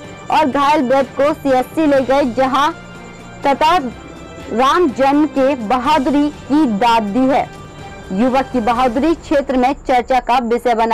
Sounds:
crocodiles hissing

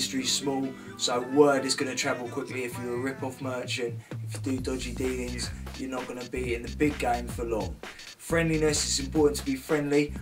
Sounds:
music, speech

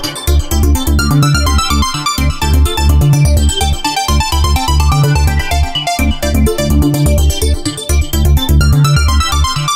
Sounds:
electronic music, music, electronica

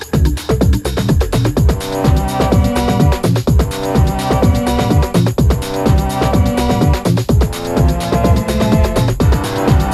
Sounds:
music, house music

